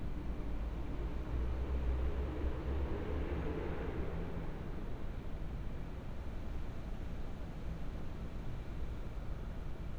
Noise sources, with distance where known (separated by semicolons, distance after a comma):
medium-sounding engine, far